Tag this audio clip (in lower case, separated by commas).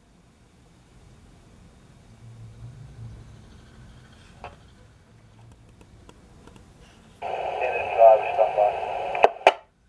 police radio chatter